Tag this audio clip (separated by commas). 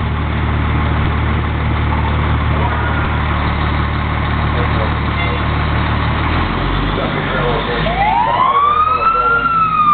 Accelerating, Engine starting